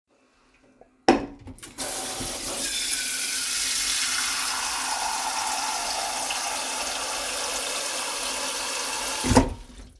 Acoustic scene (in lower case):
kitchen